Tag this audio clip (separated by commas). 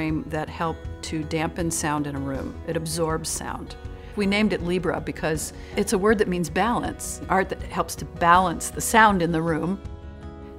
Music, Speech